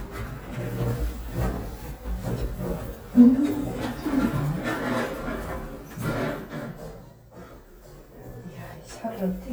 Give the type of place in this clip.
elevator